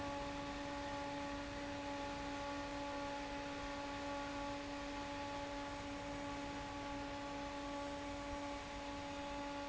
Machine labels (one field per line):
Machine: fan